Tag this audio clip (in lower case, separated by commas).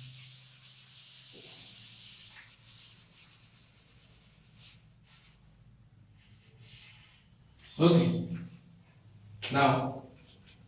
inside a small room, speech